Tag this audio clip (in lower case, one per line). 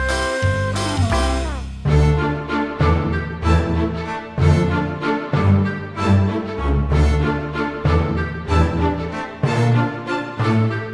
music